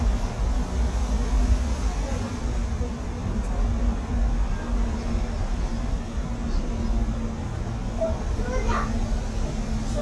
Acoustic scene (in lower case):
bus